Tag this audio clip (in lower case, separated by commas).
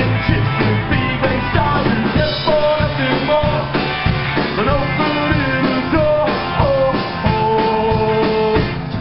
music